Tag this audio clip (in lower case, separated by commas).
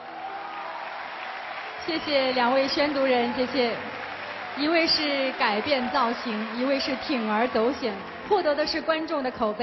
speech